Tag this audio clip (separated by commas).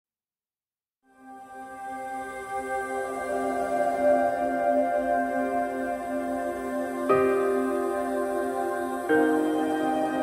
New-age music